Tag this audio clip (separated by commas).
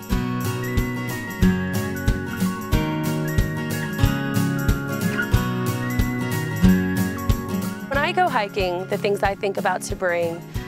Speech, Music